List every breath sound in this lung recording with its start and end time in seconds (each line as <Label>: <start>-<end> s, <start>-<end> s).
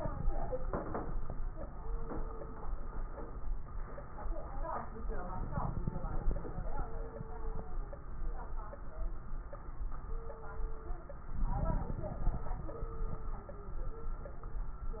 Inhalation: 5.31-6.67 s, 11.27-12.53 s
Crackles: 5.31-6.67 s, 11.27-12.53 s